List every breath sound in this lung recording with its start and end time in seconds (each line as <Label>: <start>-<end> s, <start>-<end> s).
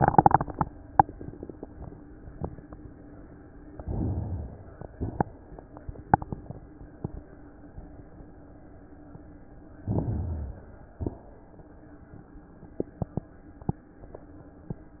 Inhalation: 3.76-4.69 s, 9.81-10.69 s
Exhalation: 4.69-5.31 s
Crackles: 9.81-10.69 s